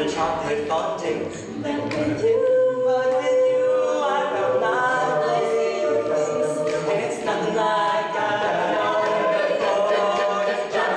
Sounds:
Music

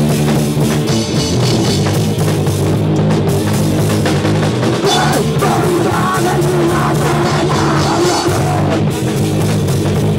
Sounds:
Rock music, Musical instrument, Punk rock, Drum kit, Music

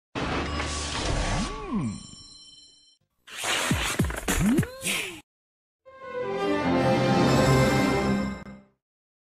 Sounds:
Music

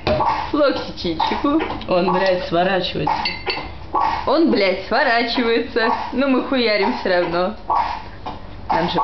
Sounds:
Speech

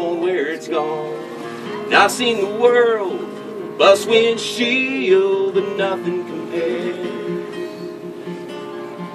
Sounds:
Music, Plucked string instrument, Guitar, Musical instrument, Strum

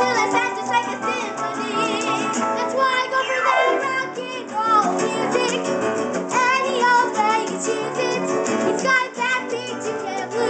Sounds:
Music, Rock and roll

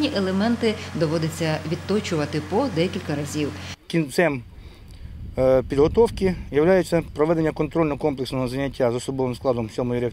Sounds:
outside, rural or natural, outside, urban or man-made, Speech

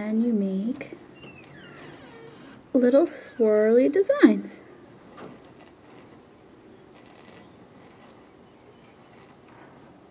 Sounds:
Speech

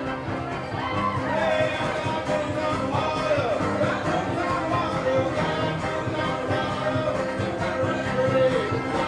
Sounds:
Music

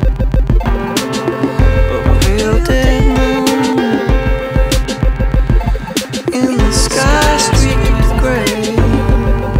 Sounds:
Music

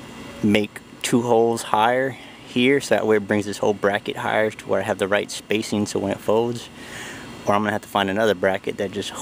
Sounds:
Speech

